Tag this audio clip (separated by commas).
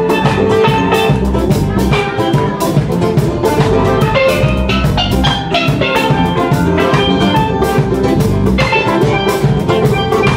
playing steelpan